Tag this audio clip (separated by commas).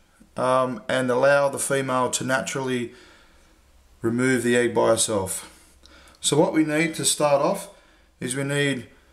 inside a small room, Speech